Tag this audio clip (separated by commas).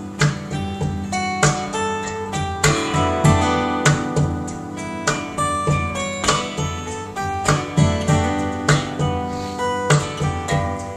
Guitar, Musical instrument